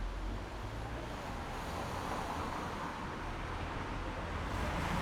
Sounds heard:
car, car wheels rolling

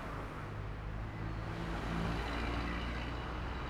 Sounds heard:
car wheels rolling, bus, car, car engine accelerating

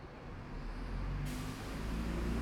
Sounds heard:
bus, bus engine idling, bus engine accelerating, bus compressor

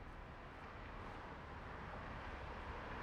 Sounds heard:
car wheels rolling, car

